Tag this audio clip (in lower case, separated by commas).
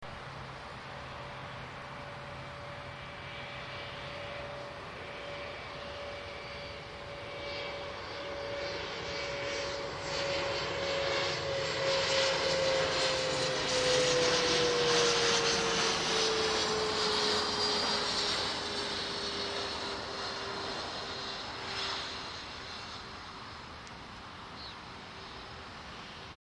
vehicle, aircraft, airplane